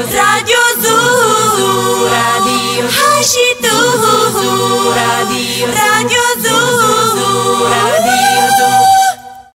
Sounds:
music

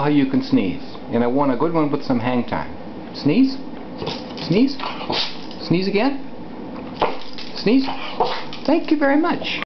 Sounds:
speech
animal
pets

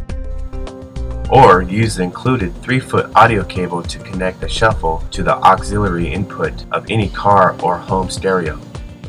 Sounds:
music
speech

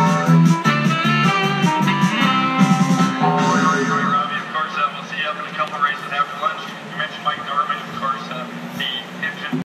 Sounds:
speech
music
motorcycle

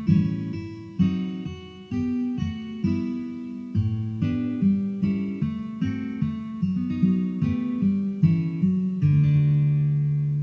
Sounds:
musical instrument
guitar
music
plucked string instrument
acoustic guitar

